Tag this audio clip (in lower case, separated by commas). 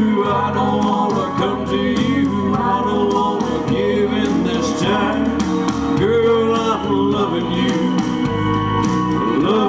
male singing, music